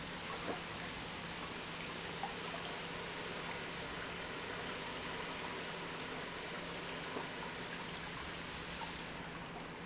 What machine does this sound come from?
pump